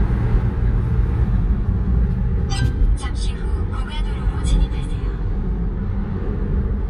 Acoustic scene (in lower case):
car